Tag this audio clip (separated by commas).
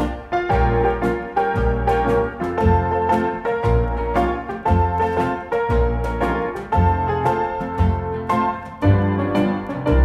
Music